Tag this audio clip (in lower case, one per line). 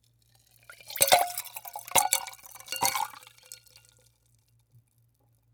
liquid